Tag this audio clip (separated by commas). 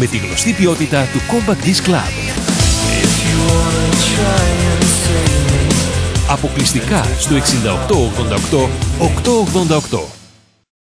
Speech, Music